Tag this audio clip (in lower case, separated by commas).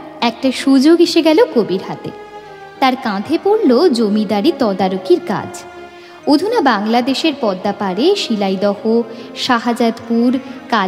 speech, music